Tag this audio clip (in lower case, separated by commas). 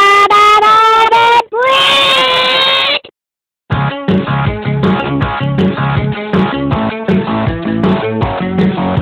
speech, music